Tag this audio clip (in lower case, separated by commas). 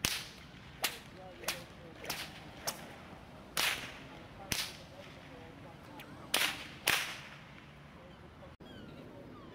whip